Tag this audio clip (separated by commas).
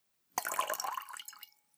Fill (with liquid), Pour, Glass, Trickle, Liquid